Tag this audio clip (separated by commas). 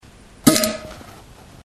Fart